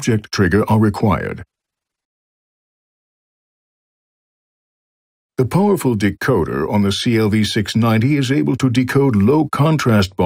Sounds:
Speech

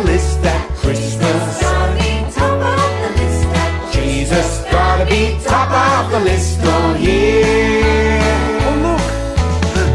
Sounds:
Music, Christmas music, Christian music

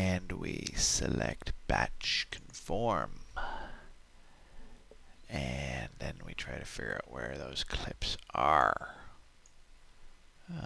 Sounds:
Speech

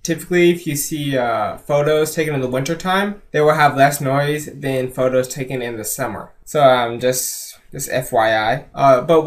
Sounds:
Speech

